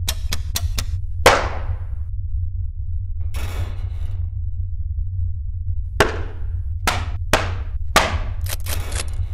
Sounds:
inside a small room, Music

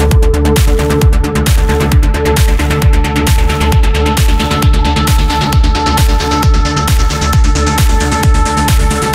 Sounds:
Music

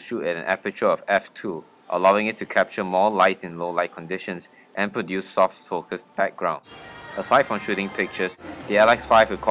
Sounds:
Speech

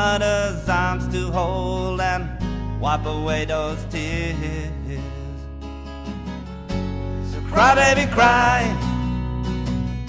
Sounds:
Music

